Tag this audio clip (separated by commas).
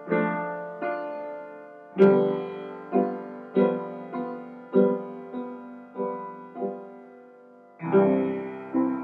Musical instrument, Music